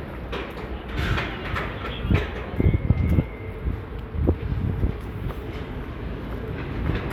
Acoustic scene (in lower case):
residential area